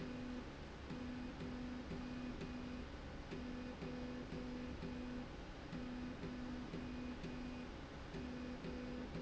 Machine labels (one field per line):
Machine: slide rail